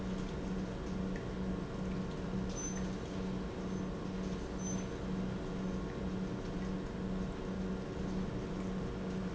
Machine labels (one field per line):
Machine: pump